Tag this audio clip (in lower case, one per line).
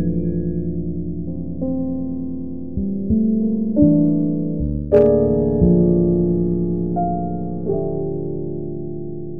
music